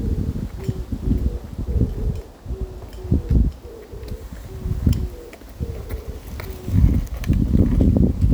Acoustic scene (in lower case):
park